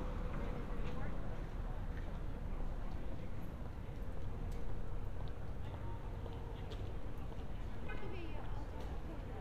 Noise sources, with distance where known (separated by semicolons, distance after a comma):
car horn, far; person or small group talking, far